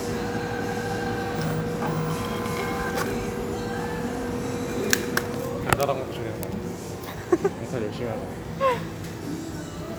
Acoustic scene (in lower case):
cafe